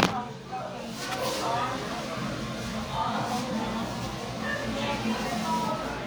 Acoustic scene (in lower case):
crowded indoor space